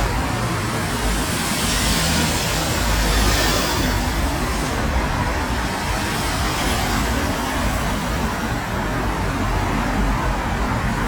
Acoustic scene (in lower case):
street